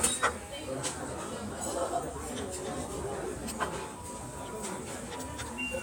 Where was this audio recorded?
in a restaurant